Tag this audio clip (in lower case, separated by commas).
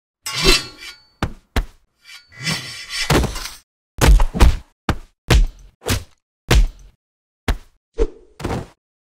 thwack